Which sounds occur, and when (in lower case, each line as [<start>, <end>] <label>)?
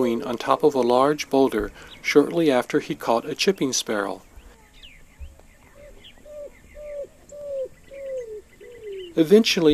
[0.00, 1.69] male speech
[0.00, 9.73] background noise
[2.02, 4.21] male speech
[5.66, 5.89] bird
[6.21, 6.50] bird
[6.68, 7.08] bird
[7.28, 7.72] bird
[7.87, 8.37] bird
[8.64, 9.12] bird
[9.13, 9.73] male speech